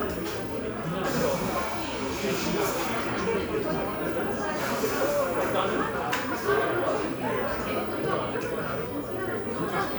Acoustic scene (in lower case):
crowded indoor space